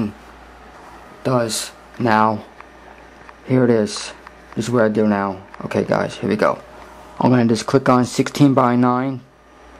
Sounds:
speech

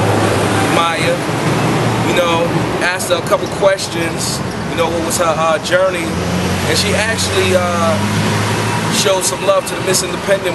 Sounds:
speech

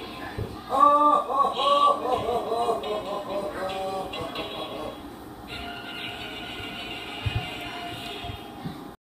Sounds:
music
television

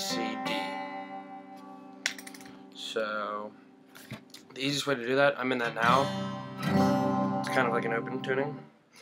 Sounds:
speech
music

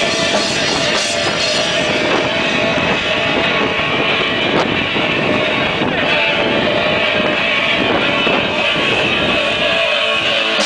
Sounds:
music

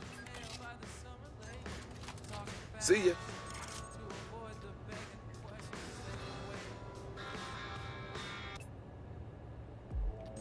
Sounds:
speech
music

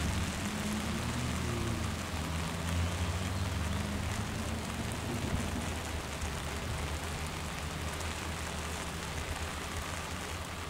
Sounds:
rain on surface

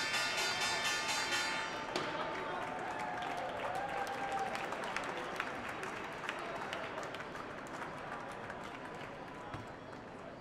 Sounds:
speech

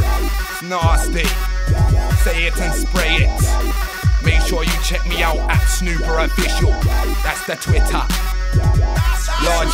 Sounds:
hip hop music
music

